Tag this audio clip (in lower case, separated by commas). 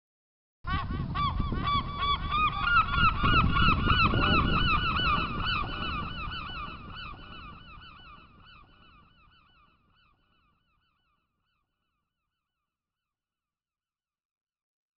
seagull, bird, wild animals, animal